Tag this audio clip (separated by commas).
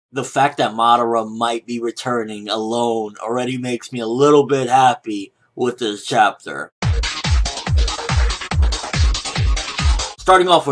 Trance music